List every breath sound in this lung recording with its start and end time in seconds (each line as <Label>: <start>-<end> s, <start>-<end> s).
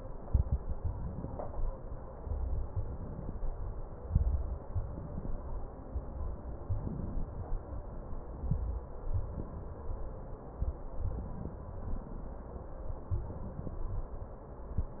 Inhalation: 0.76-1.71 s, 2.64-3.59 s, 4.65-5.60 s, 6.80-7.64 s, 9.10-9.94 s, 11.21-12.14 s, 13.19-14.12 s